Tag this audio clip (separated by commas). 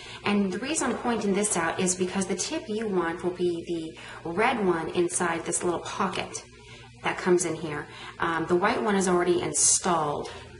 Speech